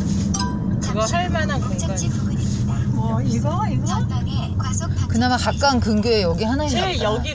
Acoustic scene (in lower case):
car